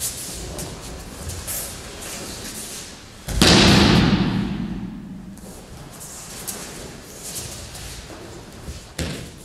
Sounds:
thump

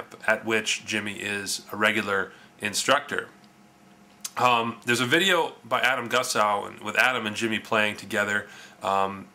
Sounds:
speech

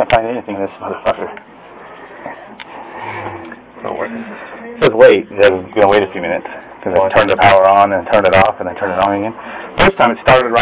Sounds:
speech

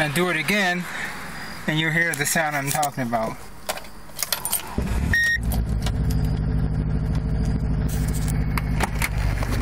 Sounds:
car, vehicle, engine, speech

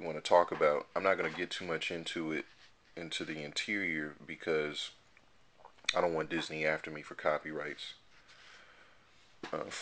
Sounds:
speech

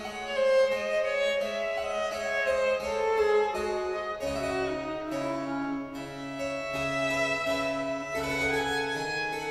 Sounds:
music, musical instrument, violin

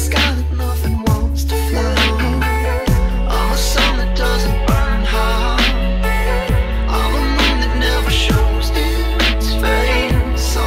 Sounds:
dubstep, music

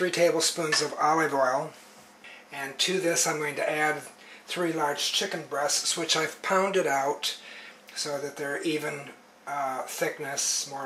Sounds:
speech

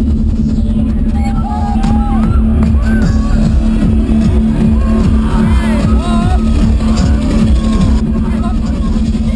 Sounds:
electronic music, music, dubstep

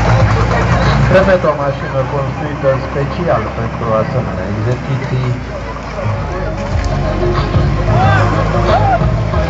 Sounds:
truck, speech, music, vehicle

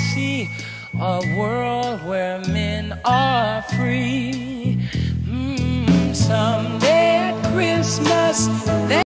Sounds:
music

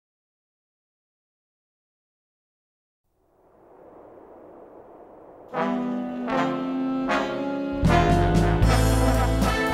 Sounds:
trombone, brass instrument

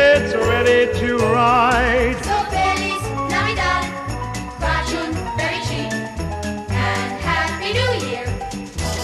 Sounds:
music, jingle bell, jingle

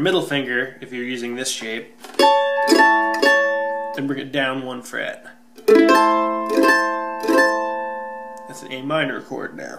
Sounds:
playing mandolin

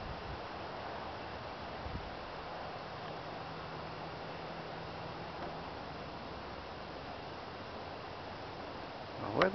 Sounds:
wind noise (microphone), wind

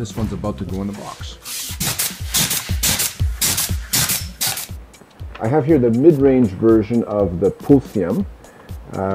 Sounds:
inside a large room or hall, speech, music

